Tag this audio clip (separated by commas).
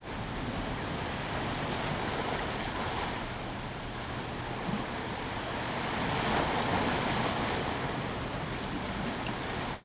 Ocean, Water, Waves